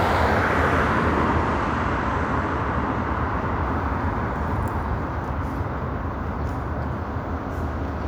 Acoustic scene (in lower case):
street